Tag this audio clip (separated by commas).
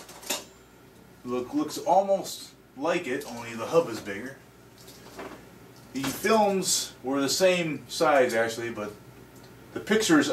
Speech